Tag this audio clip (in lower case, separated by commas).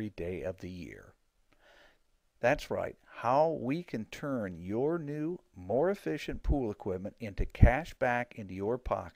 speech